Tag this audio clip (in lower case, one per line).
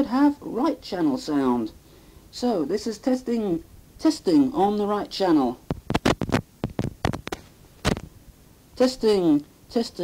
radio
speech